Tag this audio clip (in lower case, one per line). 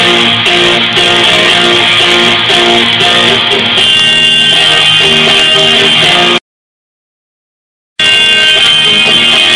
music